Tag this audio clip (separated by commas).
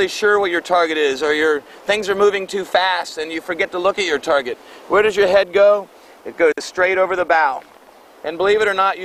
Speech